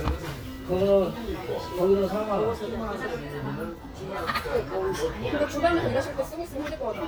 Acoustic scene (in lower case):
restaurant